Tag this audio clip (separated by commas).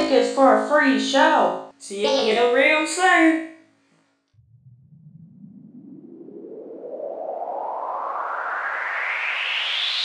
Speech